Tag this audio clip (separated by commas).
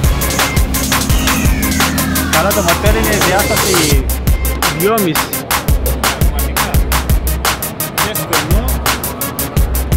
Music, Speech